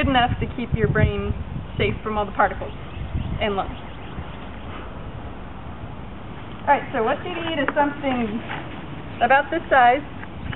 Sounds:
speech

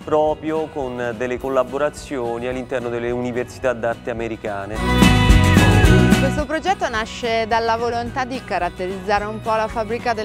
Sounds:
music, speech

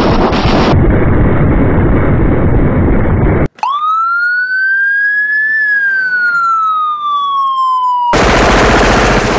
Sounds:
emergency vehicle, siren, police car (siren)

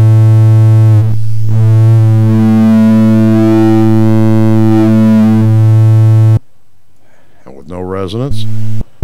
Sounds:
inside a small room, synthesizer, speech

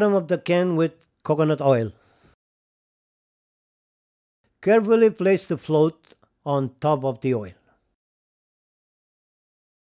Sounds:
speech

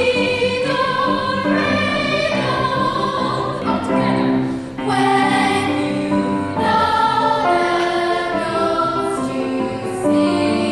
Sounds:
music

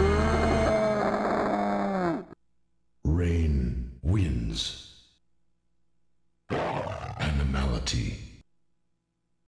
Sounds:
speech

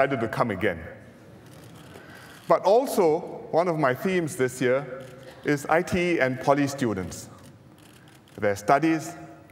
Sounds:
man speaking, speech, narration

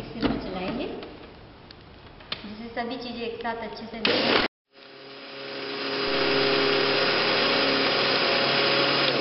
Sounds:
blender

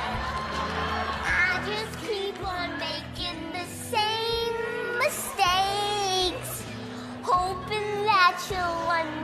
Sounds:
child singing

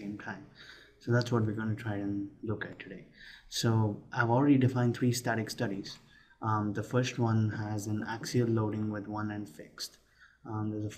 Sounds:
speech

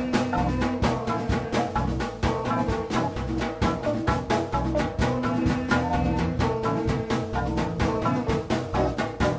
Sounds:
drum, music, percussion, musical instrument

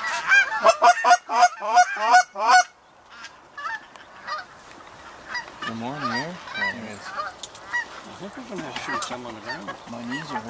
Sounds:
honk, goose honking, fowl, goose

